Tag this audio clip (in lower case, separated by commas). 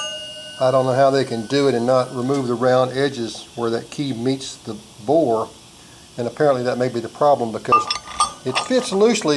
speech